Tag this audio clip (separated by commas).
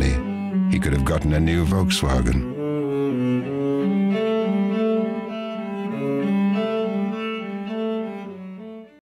Music, Speech